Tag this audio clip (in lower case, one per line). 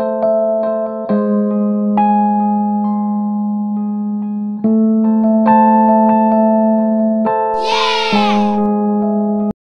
music